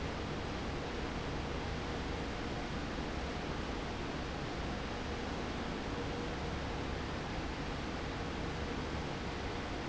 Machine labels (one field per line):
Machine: fan